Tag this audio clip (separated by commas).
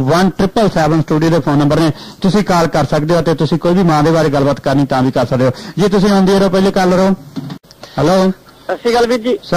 Speech, Radio